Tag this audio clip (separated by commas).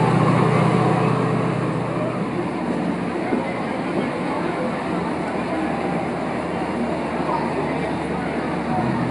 Speech